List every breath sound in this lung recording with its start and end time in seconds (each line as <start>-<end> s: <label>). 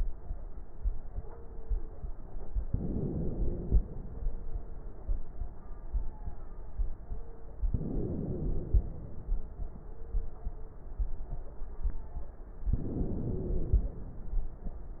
2.65-3.77 s: inhalation
7.77-8.89 s: inhalation
12.78-13.90 s: inhalation